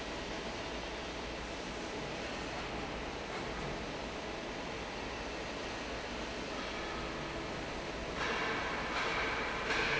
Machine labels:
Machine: fan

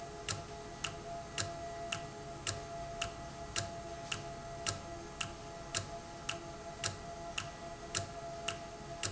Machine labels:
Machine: valve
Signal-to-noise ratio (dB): 0 dB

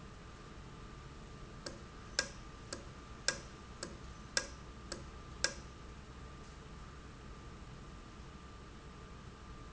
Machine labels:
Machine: valve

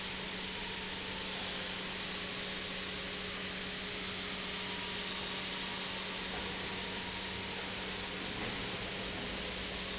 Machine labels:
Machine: pump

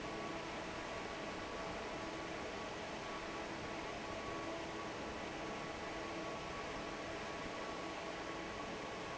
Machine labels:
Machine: fan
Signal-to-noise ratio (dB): 6 dB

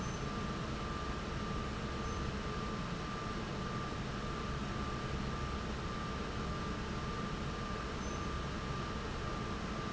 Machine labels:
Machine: fan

